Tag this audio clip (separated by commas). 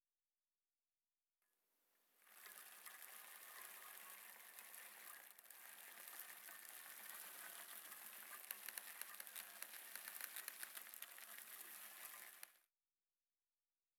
Bicycle, Vehicle